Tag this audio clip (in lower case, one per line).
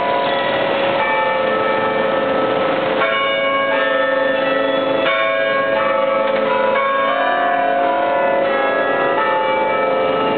church bell ringing